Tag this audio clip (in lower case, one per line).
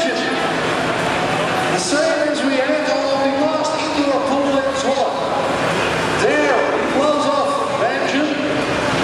speech